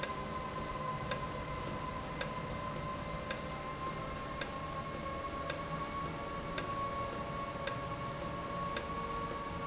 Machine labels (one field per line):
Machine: valve